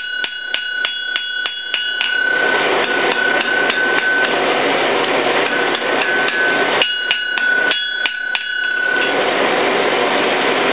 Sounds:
tools

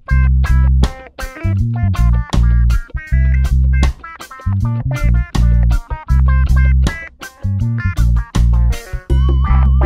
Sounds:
music

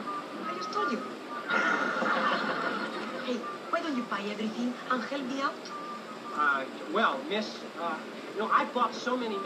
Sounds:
speech
music

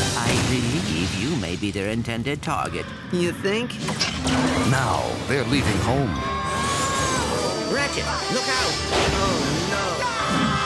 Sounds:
speech

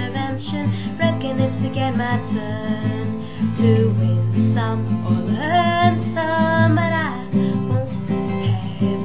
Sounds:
musical instrument
music
strum
guitar

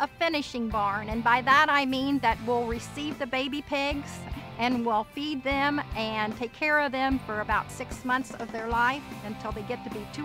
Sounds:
speech
music

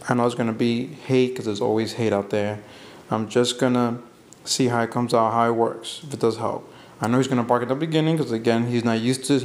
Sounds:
speech

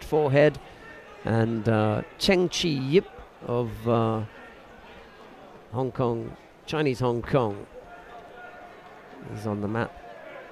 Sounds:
speech

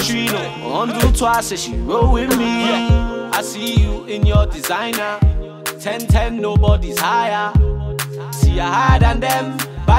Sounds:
music

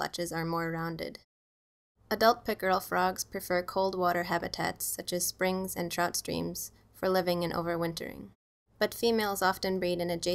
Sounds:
speech

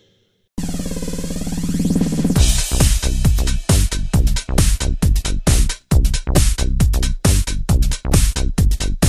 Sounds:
dance music
music

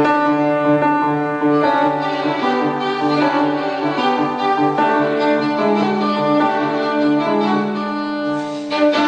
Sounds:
violin
music
keyboard (musical)
musical instrument
piano
string section

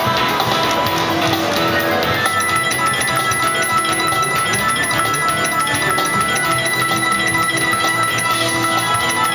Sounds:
music

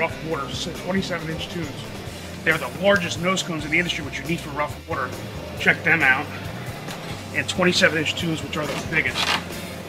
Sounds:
gurgling
speech
music

